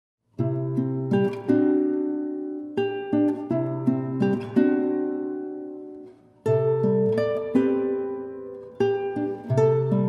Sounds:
Musical instrument, Plucked string instrument, Guitar, Acoustic guitar, Music

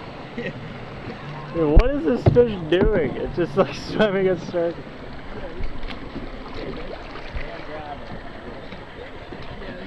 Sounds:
Speech, canoe, Vehicle, Boat

